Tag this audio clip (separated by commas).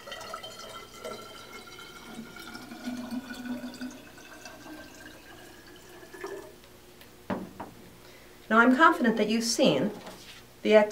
Water